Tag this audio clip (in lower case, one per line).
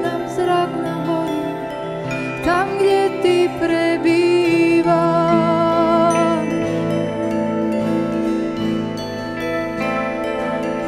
music